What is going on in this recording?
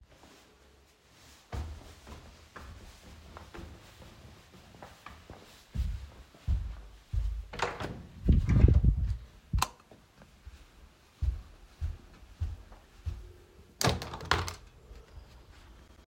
I walked to my bedroom, opened the door, and turned on the light. Then I walked to the window and opened it.